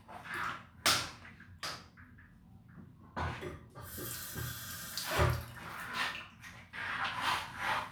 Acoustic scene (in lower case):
restroom